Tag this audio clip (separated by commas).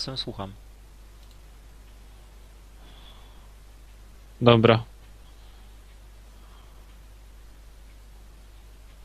Speech